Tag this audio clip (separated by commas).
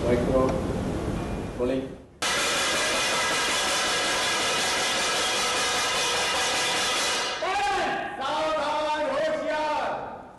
Speech, inside a large room or hall